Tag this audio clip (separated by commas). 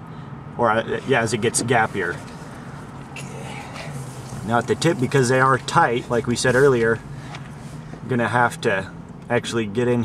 Speech, Vehicle, Car